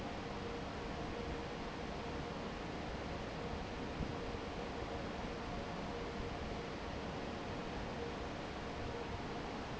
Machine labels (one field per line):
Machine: fan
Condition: normal